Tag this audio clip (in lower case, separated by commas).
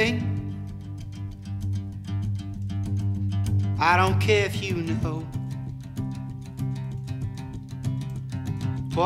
music